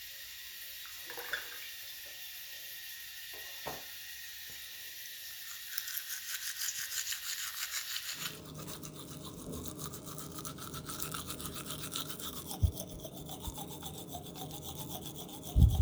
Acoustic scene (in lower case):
restroom